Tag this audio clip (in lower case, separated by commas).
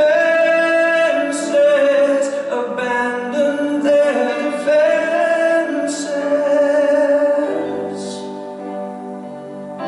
tender music, music